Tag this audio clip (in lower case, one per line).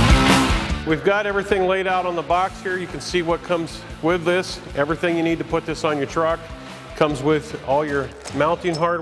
speech
music